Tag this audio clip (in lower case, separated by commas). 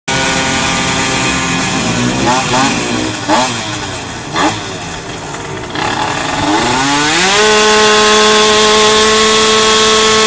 vehicle, motorcycle, chainsaw